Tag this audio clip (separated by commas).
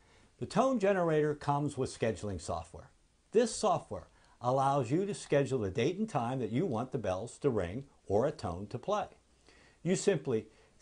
Speech